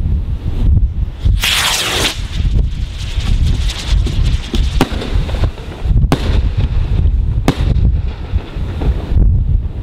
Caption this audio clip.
The wind is blowing, hissing occurs, then popping and cracking take place